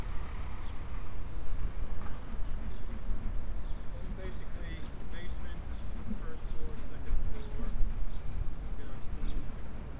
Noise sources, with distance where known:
large-sounding engine

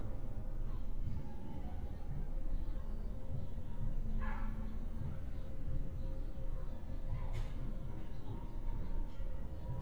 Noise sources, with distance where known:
dog barking or whining, far

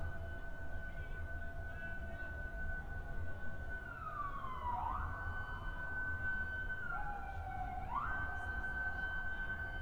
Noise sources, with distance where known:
siren, far

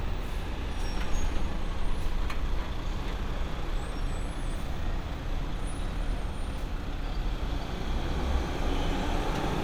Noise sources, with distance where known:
engine of unclear size, near

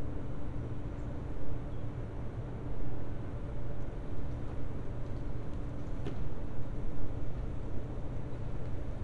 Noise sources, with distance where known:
large-sounding engine, far

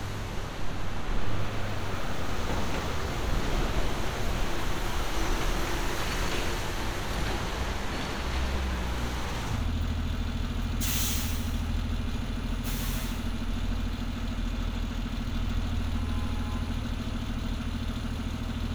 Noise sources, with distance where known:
large-sounding engine

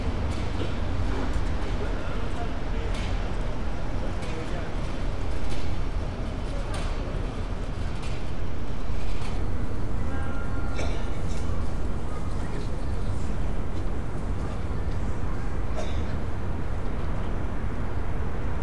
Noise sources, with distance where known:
unidentified human voice

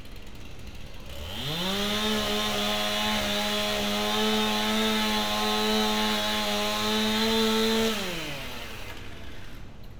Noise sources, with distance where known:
unidentified powered saw, near

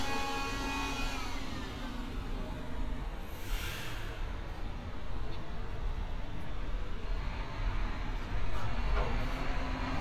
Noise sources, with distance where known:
large-sounding engine, near; small or medium rotating saw

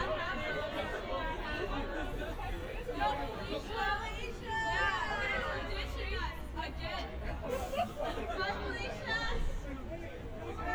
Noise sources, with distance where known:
person or small group shouting, near

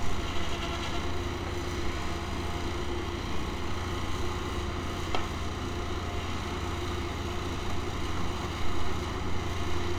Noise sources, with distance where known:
engine of unclear size, near

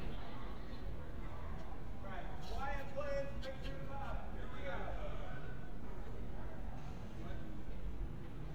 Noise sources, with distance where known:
person or small group talking, far

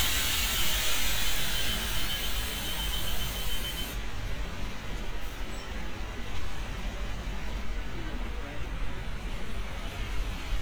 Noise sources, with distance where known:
large-sounding engine, near

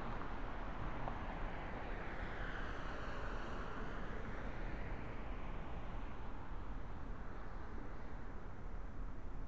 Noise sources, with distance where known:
background noise

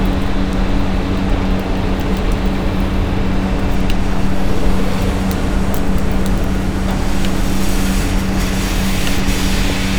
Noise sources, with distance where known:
large-sounding engine, near

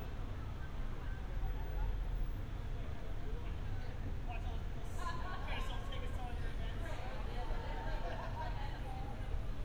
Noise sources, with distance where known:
person or small group talking, near

